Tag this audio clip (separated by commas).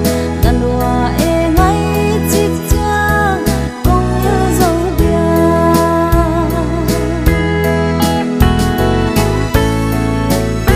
Music